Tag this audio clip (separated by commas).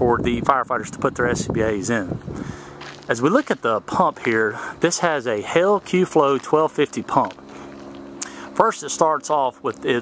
Speech